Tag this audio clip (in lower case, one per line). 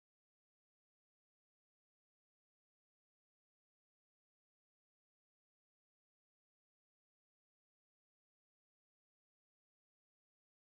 silence